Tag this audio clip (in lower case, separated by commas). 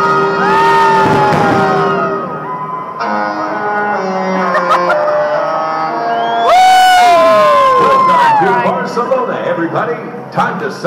speech, fireworks, crowd, music